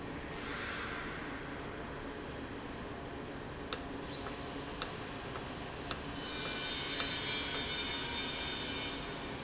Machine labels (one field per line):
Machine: valve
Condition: normal